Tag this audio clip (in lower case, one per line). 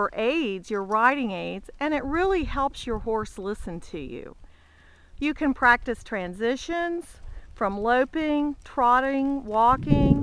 speech